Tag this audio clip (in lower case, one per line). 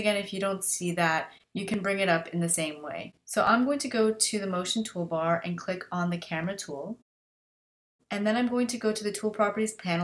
speech